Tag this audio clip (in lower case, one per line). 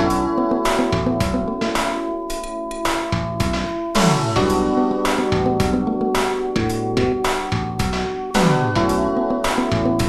synthesizer
music